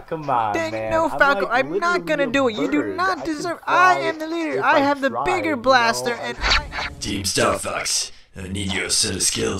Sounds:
Speech

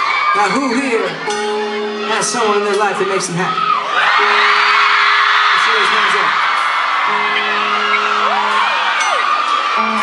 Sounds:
Music, Speech

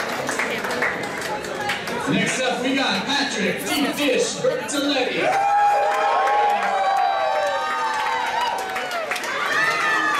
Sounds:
Speech

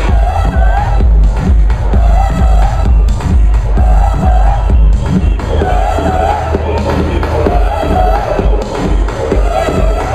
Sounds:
Pop music, Music, Dance music

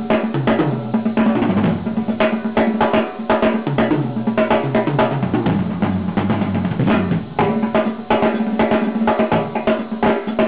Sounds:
Snare drum, Bass drum, Percussion, Drum, Drum roll

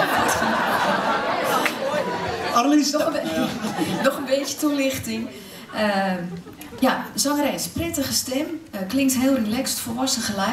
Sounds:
Speech

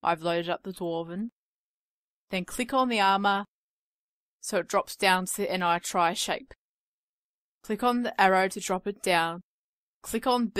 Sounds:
Speech

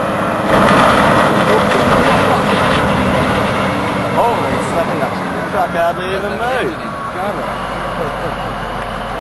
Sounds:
Vehicle, Truck, Speech

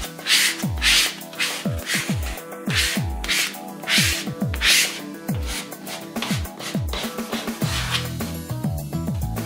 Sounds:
Music, Static

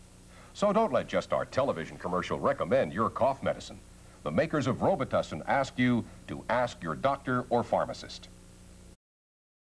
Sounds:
Speech

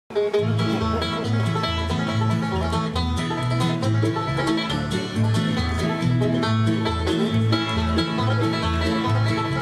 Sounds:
Musical instrument, Music, Banjo, Country

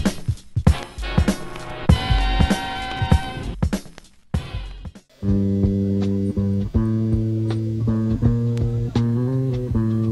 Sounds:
Bass guitar, inside a small room, Music

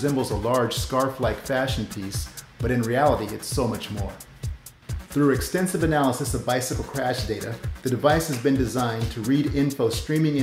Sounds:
Music, Speech

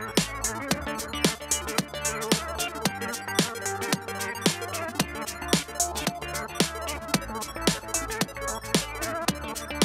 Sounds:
Dubstep, Music, Electronic music

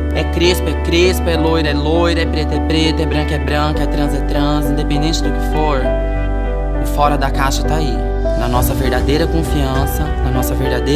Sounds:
Speech, Music

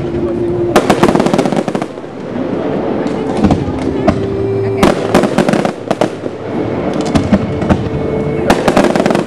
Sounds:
Fireworks, Music, Speech, outside, urban or man-made

